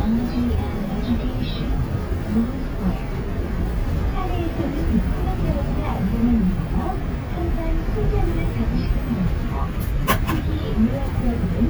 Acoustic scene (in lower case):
bus